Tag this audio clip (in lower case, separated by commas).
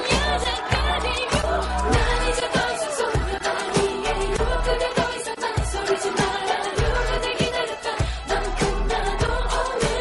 music, singing, music of asia